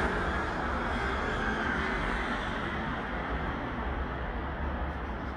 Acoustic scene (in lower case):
street